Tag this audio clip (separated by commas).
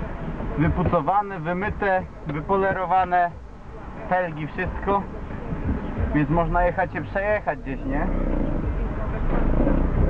Vehicle, Speech, Car